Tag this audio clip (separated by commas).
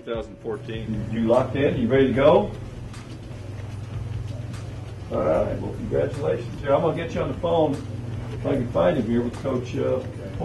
Speech